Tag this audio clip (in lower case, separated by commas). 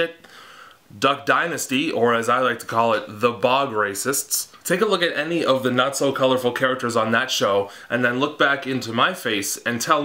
speech